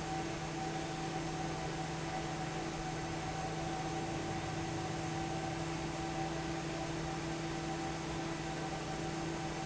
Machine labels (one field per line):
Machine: fan